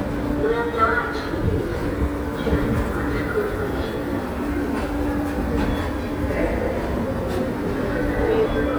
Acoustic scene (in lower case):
subway station